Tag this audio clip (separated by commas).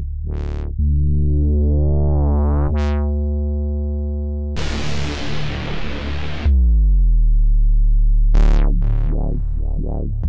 Music